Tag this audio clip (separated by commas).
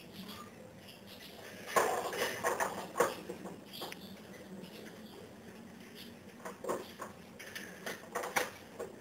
Patter